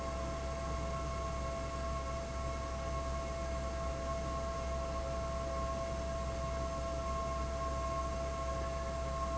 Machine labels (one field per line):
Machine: fan